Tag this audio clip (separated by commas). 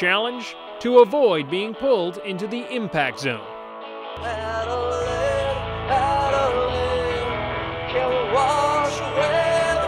Music, Speech